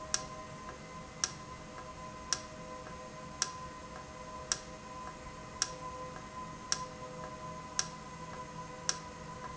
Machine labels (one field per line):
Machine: valve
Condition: normal